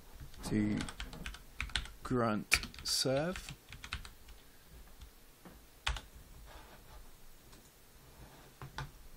An adult male is speaking and typing on a keyboard